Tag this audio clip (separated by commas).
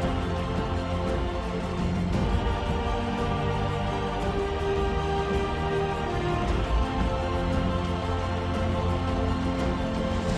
Music